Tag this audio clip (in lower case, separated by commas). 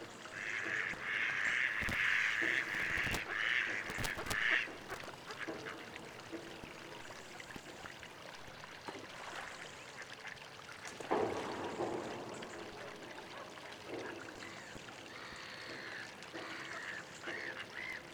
fowl, animal, livestock